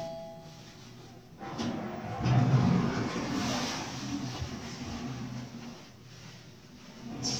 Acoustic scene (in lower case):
elevator